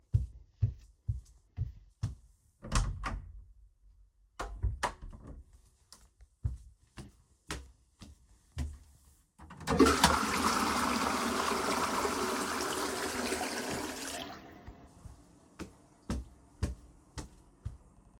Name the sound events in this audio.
footsteps, door, toilet flushing